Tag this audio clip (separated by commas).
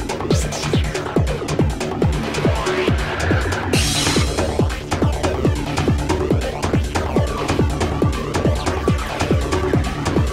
Music